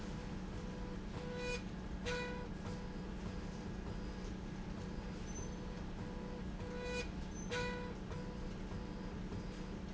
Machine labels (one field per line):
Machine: slide rail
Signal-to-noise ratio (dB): 0 dB